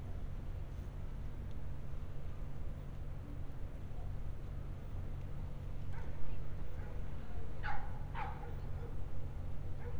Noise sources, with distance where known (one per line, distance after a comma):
dog barking or whining, near